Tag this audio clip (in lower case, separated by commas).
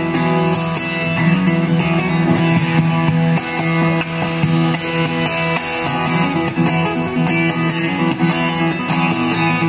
acoustic guitar, musical instrument, electric guitar, guitar, music, plucked string instrument